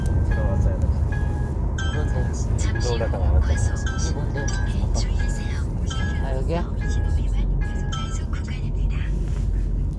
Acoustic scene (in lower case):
car